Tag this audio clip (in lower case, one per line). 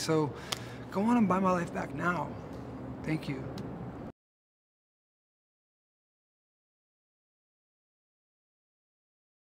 speech